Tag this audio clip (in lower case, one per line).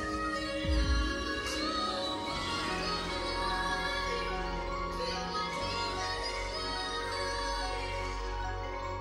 percussion
tubular bells
music